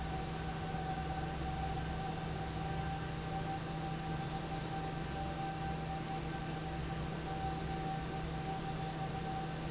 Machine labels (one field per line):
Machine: fan